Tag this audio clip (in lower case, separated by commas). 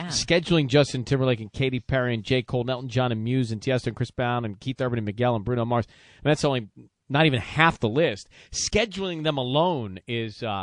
speech